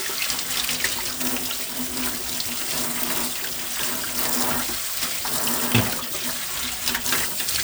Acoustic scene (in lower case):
kitchen